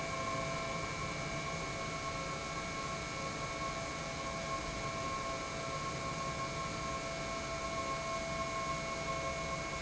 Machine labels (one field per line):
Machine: pump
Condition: normal